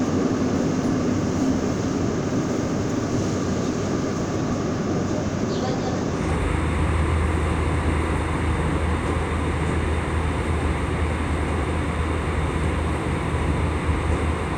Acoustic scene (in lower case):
subway train